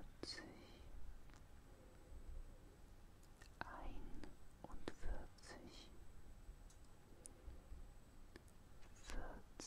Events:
0.0s-9.6s: mechanisms
0.2s-0.2s: tick
0.2s-0.9s: whispering
1.3s-1.3s: tick
1.7s-2.8s: breathing
3.2s-3.3s: tick
3.4s-3.5s: tick
3.6s-3.6s: tick
3.6s-4.3s: whispering
4.2s-4.3s: tick
4.6s-5.2s: whispering
4.6s-4.7s: tick
4.8s-4.9s: tick
5.4s-5.9s: whispering
6.7s-6.7s: tick
7.0s-8.1s: breathing
7.2s-7.3s: tick
8.3s-8.4s: tick
8.8s-8.9s: tick
9.0s-9.4s: whispering
9.5s-9.6s: tick
9.6s-9.6s: whispering

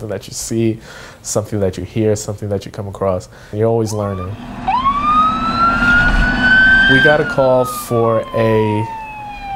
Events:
0.0s-0.8s: male speech
0.0s-9.5s: wind
0.8s-1.2s: breathing
1.2s-3.2s: male speech
3.3s-3.5s: breathing
3.5s-4.3s: male speech
3.8s-4.3s: ambulance (siren)
4.7s-9.5s: ambulance (siren)
6.9s-8.8s: male speech

